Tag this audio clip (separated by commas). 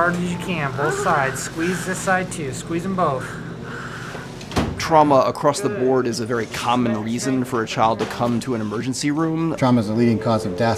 Speech